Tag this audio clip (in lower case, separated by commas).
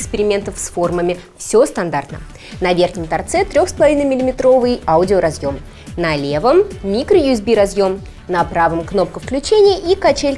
music, speech